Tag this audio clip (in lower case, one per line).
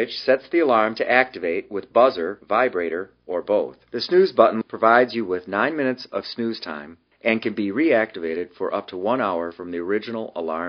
speech